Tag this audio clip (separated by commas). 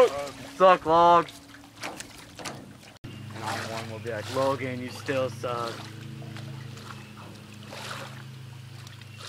Speech